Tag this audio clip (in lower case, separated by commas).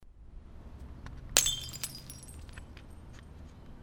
glass, shatter, crushing